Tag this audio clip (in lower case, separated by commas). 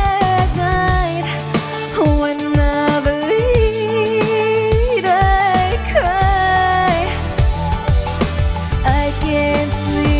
music, singing, music of asia